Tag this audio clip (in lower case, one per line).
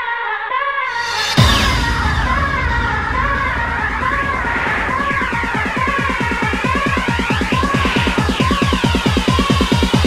music
house music
electronic dance music